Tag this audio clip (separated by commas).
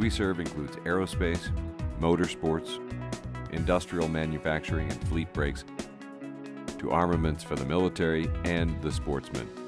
Music, Speech